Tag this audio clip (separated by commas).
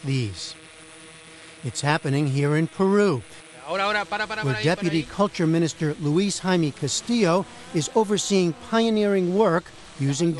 Speech